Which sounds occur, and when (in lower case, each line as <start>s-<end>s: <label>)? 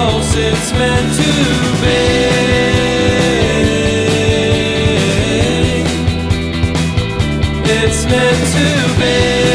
0.0s-5.8s: choir
0.0s-9.5s: music
7.6s-9.5s: choir